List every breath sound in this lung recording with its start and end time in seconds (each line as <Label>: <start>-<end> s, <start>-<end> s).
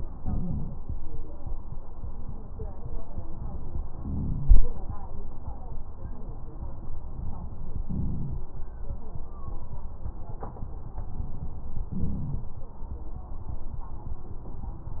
Inhalation: 0.20-0.76 s, 3.96-4.63 s, 7.85-8.53 s, 11.94-12.61 s
Wheeze: 0.20-0.76 s
Crackles: 11.94-12.61 s